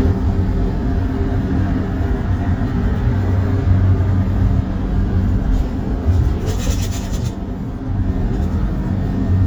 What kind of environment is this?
bus